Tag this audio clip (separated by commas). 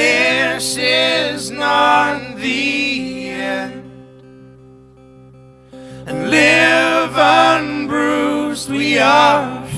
Music